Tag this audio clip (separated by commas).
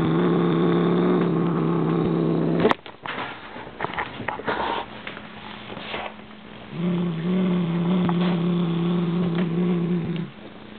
cat growling